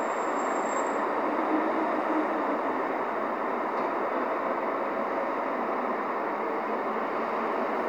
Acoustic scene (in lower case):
street